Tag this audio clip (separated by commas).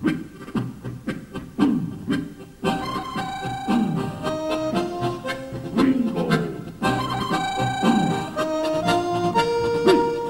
Harmonica, Music